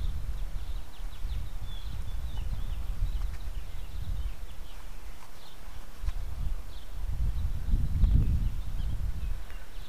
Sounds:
Animal

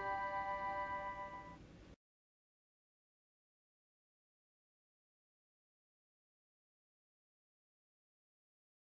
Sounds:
Tick

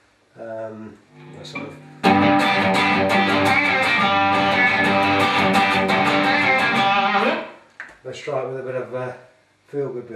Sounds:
Plucked string instrument, Strum, Musical instrument, Guitar, Music, Electric guitar, Speech

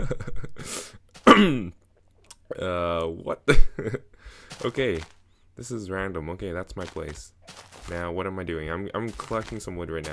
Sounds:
Speech

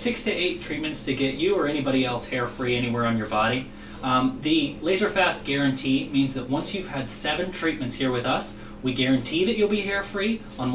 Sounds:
Speech

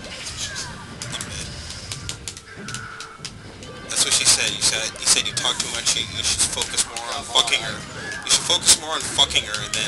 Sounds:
Music, Speech

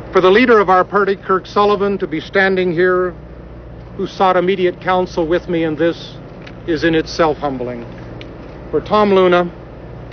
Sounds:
Male speech, monologue, Speech

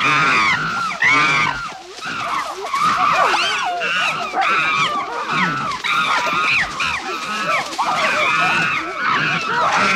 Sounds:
chimpanzee pant-hooting

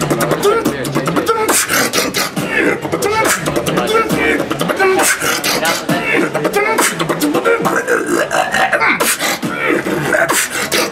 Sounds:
Speech, Beatboxing

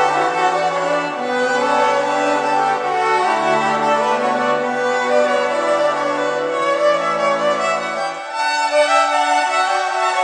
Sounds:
fiddle, Musical instrument, Music, Bowed string instrument, Classical music

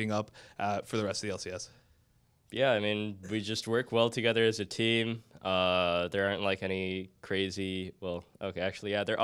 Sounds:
Speech

